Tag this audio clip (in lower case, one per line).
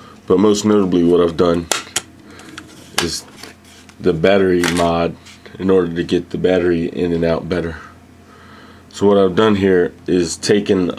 speech